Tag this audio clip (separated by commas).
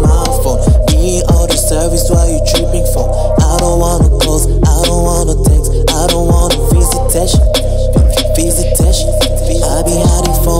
Pop music, Music